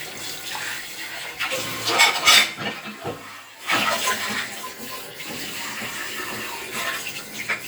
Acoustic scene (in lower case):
kitchen